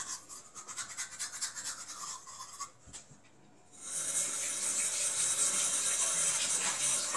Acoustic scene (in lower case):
restroom